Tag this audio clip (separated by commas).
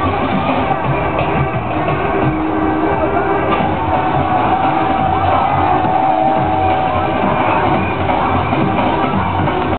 Electronic music, Music